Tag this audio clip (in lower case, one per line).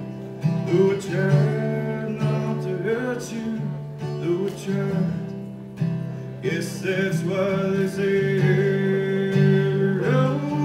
male singing
music